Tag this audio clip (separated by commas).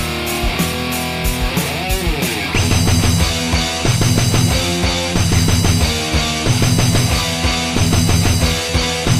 Music, Guitar, Musical instrument, Strum, Plucked string instrument